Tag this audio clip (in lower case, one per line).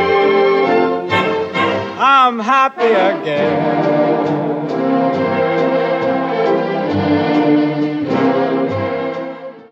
music